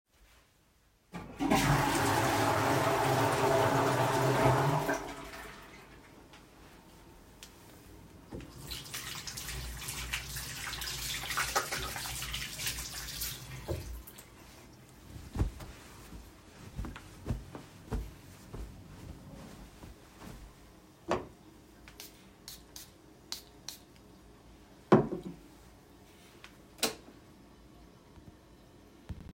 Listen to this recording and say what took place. I flushed the toilet and then washed my hands .After washing my hands, I dried them with a towel and then sprayed perfume.Finally I switched off the light